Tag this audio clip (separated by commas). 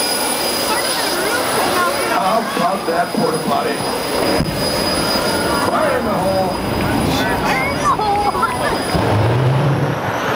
Speech